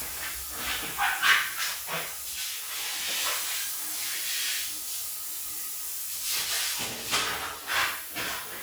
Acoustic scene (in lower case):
restroom